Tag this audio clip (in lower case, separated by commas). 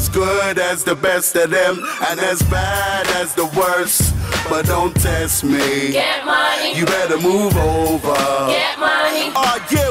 music